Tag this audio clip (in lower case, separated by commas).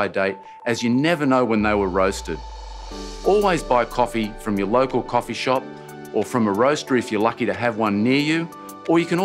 speech, music